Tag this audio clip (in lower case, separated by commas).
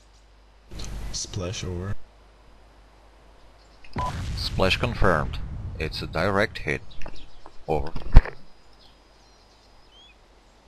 speech